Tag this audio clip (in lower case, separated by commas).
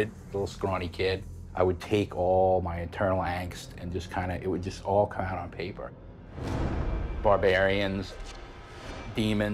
music, speech